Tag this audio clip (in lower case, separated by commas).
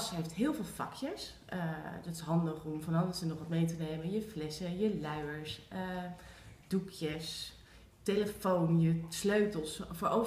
speech